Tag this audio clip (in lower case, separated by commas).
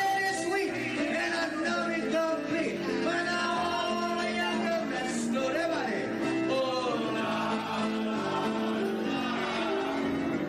choir, music, male singing